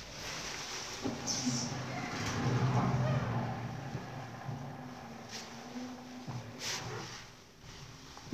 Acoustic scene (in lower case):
elevator